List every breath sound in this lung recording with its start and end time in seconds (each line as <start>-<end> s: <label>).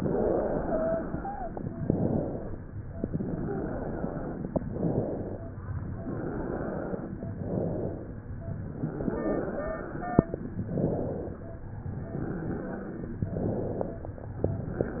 0.04-1.54 s: inhalation
0.63-1.54 s: wheeze
1.78-2.70 s: exhalation
2.98-4.55 s: inhalation
3.32-4.27 s: wheeze
4.61-5.52 s: exhalation
5.58-7.16 s: inhalation
7.36-8.27 s: exhalation
8.77-10.34 s: inhalation
8.77-10.34 s: wheeze
10.66-11.57 s: exhalation
11.73-13.13 s: inhalation
12.18-13.13 s: wheeze
13.26-14.18 s: exhalation